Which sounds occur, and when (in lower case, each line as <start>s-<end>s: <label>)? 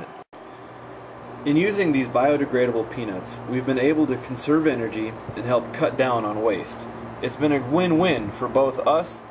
0.0s-0.2s: mechanisms
0.3s-9.3s: mechanisms
1.4s-3.4s: man speaking
3.5s-6.9s: man speaking
7.2s-9.1s: man speaking
9.3s-9.3s: man speaking